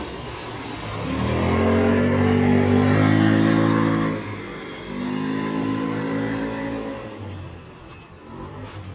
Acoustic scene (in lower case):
residential area